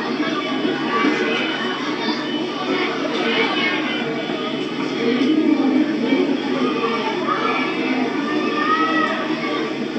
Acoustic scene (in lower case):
park